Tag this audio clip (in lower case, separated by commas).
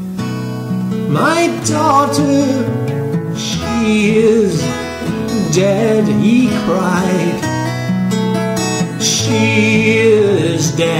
country, acoustic guitar, music, plucked string instrument, musical instrument, guitar